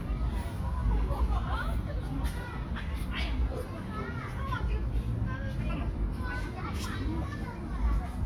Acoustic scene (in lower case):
park